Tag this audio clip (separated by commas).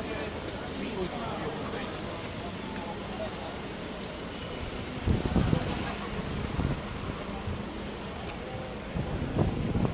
Speech, outside, urban or man-made